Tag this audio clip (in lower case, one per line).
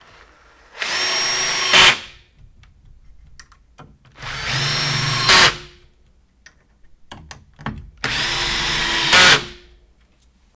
tools